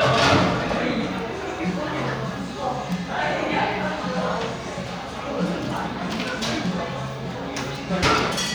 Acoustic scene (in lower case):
cafe